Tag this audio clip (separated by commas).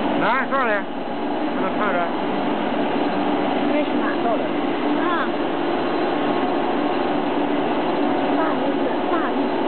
Speech